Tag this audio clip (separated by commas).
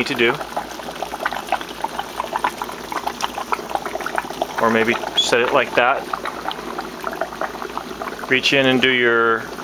Speech, Liquid, Boiling